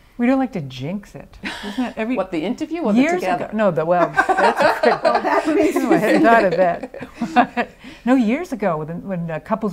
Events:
0.0s-9.7s: background noise
0.1s-9.7s: conversation
0.2s-1.3s: female speech
1.4s-2.0s: breathing
1.4s-6.9s: female speech
4.1s-6.8s: laughter
7.2s-7.6s: laughter
7.3s-7.5s: female speech
7.8s-8.1s: breathing
8.1s-9.7s: female speech

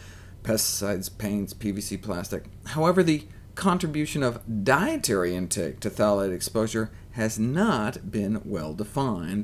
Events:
0.0s-9.4s: background noise
0.3s-2.4s: male speech
2.6s-3.2s: male speech
3.5s-6.9s: male speech
7.1s-9.4s: male speech

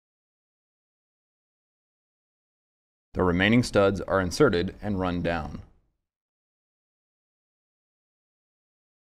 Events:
3.1s-5.6s: man speaking
3.1s-6.1s: background noise

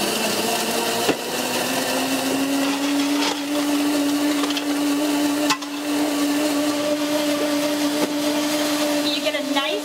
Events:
0.0s-9.8s: blender
1.0s-1.2s: generic impact sounds
3.1s-3.4s: generic impact sounds
4.4s-4.7s: generic impact sounds
5.4s-5.6s: generic impact sounds
8.0s-8.1s: generic impact sounds
9.0s-9.8s: woman speaking

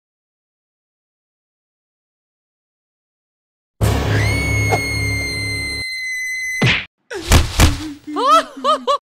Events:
3.8s-5.8s: music
4.1s-6.7s: screaming
4.7s-4.8s: human sounds
6.6s-6.8s: sound effect
7.1s-7.3s: human voice
7.1s-8.5s: sound effect
7.6s-8.9s: synthetic singing
8.1s-9.0s: laughter

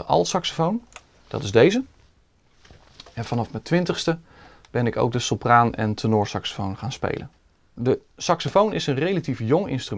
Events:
0.0s-0.7s: male speech
0.0s-9.9s: mechanisms
0.8s-1.0s: tick
1.1s-1.5s: surface contact
1.2s-1.8s: male speech
2.5s-3.9s: surface contact
2.5s-3.1s: generic impact sounds
2.9s-3.0s: tick
3.1s-4.2s: male speech
4.2s-4.6s: breathing
4.6s-4.7s: tick
4.7s-7.3s: male speech
7.2s-7.4s: breathing
7.7s-8.0s: male speech
8.1s-9.9s: male speech
8.4s-8.5s: generic impact sounds

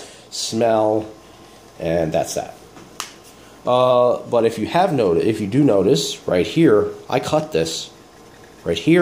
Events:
0.0s-0.3s: breathing
0.0s-9.0s: mechanisms
0.3s-1.1s: male speech
1.7s-2.6s: male speech
2.7s-2.8s: tick
3.0s-3.1s: tick
3.2s-3.3s: tick
3.6s-7.8s: male speech

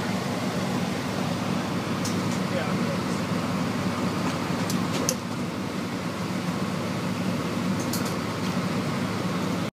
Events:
0.0s-9.7s: air conditioning
0.0s-9.7s: airplane
2.1s-2.2s: generic impact sounds
2.3s-2.4s: generic impact sounds
2.5s-3.0s: man speaking
4.3s-4.4s: generic impact sounds
4.6s-5.2s: generic impact sounds
5.3s-5.4s: generic impact sounds
7.8s-8.1s: generic impact sounds
8.4s-8.5s: generic impact sounds

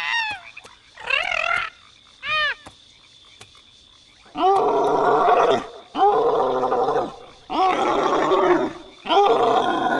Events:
0.0s-0.6s: animal
0.0s-9.9s: croak
0.2s-0.4s: tap
0.6s-0.7s: tap
0.9s-1.6s: animal
1.1s-1.3s: tap
1.5s-1.6s: tap
2.1s-2.3s: tap
2.1s-2.7s: animal
2.5s-2.7s: tap
3.3s-3.5s: tap
4.3s-5.7s: animal
5.9s-7.1s: animal
7.4s-8.7s: animal
9.0s-9.9s: animal

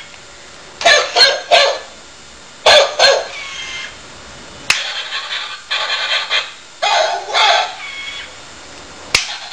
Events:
0.0s-9.5s: mechanisms
0.1s-0.2s: generic impact sounds
0.8s-1.8s: bark
2.6s-3.3s: bark
3.3s-3.9s: sound effect
4.7s-4.8s: generic impact sounds
4.7s-5.6s: sound effect
5.7s-6.5s: sound effect
6.8s-7.2s: bark
7.3s-7.7s: bark
7.8s-8.3s: sound effect
9.1s-9.3s: generic impact sounds

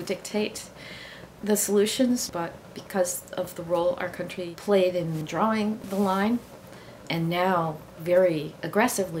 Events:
0.0s-0.7s: woman speaking
0.0s-9.2s: mechanisms
0.7s-1.3s: breathing
1.4s-2.5s: woman speaking
2.7s-3.2s: woman speaking
3.3s-5.8s: woman speaking
5.1s-5.2s: surface contact
5.8s-6.3s: surface contact
5.9s-6.4s: woman speaking
6.7s-6.9s: breathing
7.1s-7.7s: woman speaking
8.0s-8.5s: woman speaking
8.6s-9.2s: woman speaking

